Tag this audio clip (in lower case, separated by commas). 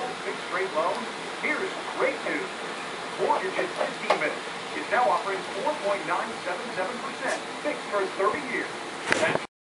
speech